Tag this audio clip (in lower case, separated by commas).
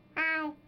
human voice, child speech, speech